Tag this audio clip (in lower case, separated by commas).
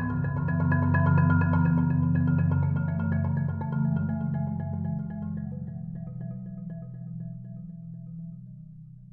music